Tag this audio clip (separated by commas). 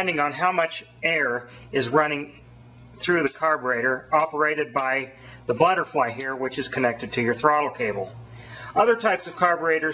Speech